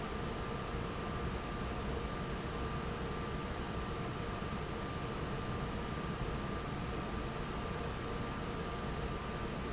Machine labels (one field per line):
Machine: fan